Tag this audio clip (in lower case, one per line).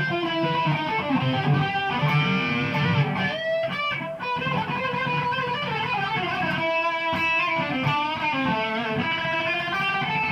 plucked string instrument
electric guitar
guitar
playing electric guitar
music
musical instrument